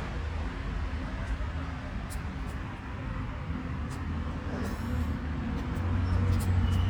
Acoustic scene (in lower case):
residential area